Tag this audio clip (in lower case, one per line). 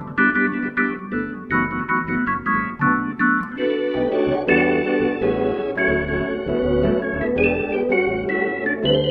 harmonic
music